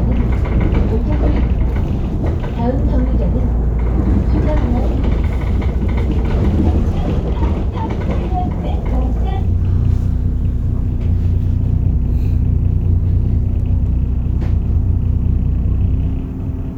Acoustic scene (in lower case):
bus